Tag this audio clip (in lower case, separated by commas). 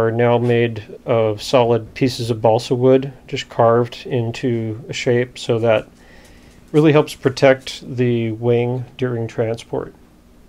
speech